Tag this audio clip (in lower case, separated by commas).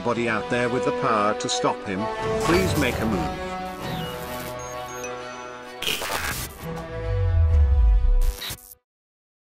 speech, music